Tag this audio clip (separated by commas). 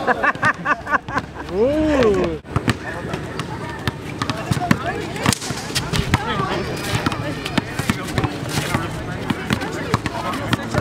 playing volleyball